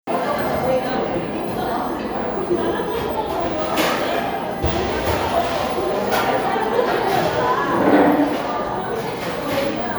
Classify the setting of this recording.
cafe